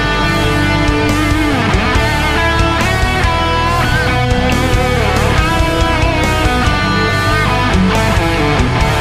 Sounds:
music, guitar, plucked string instrument, electric guitar, musical instrument

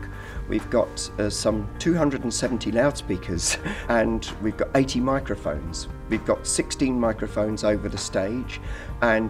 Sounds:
music, speech

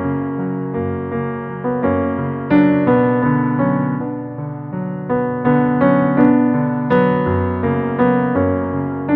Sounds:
music

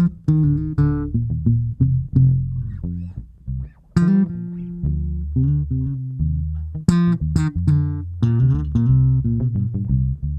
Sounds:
plucked string instrument, music, musical instrument

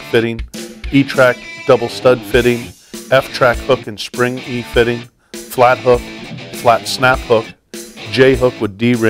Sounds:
music, speech

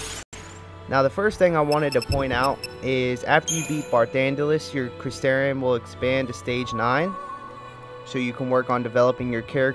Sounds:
music, speech

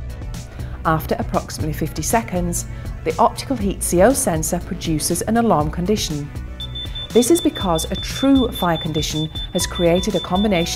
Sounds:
speech, music

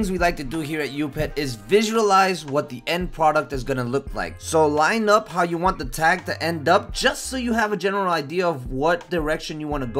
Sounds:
music, speech

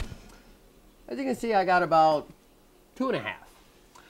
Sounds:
speech

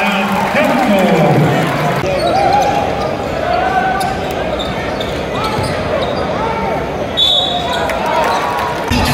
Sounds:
basketball bounce

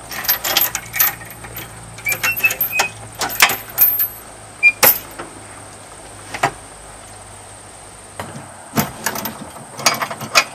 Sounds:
vehicle

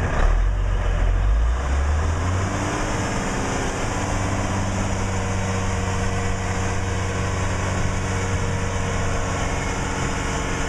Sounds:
vehicle, truck

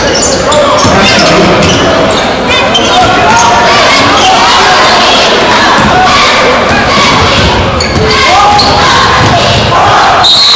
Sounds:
inside a public space, speech, basketball bounce

